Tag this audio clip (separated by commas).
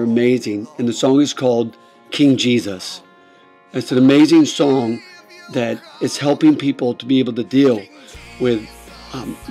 Speech, Music